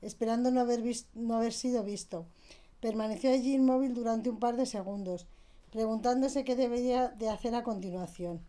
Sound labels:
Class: speech